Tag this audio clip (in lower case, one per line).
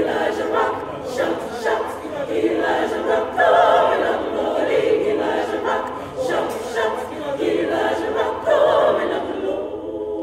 singing choir